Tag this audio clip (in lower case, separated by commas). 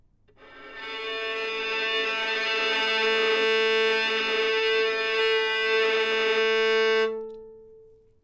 musical instrument, bowed string instrument, music